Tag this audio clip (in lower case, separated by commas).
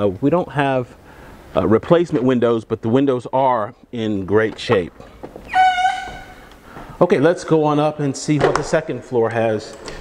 walk, speech